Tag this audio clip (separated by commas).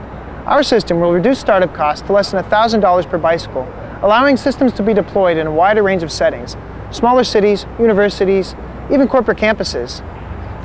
Speech